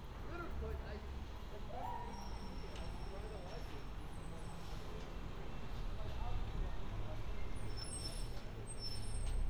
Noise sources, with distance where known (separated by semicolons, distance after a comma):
background noise